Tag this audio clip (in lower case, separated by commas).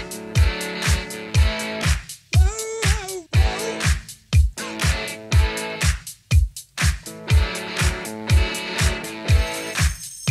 background music, music